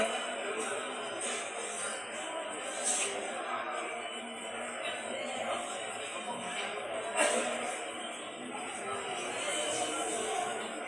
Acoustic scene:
subway station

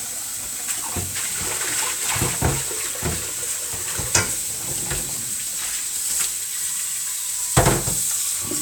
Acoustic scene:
kitchen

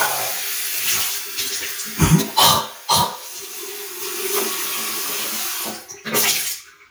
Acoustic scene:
restroom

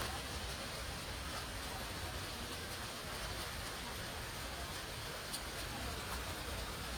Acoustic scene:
park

